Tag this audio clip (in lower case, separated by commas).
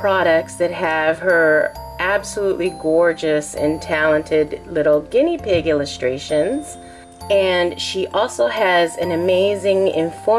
speech, music